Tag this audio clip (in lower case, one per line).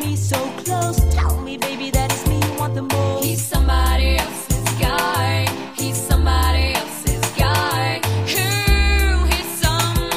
soul music